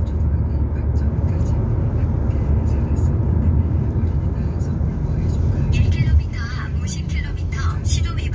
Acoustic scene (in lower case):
car